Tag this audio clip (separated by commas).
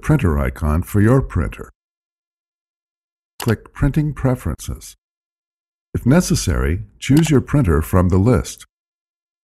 Speech